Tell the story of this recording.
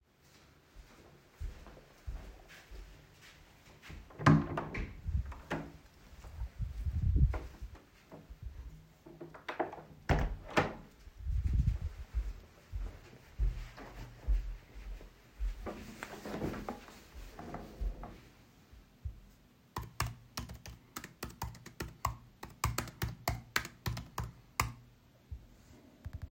I walked into the office while carrying the device. I opened and closed the door, moved toward the desk, and then typed on a keyboard.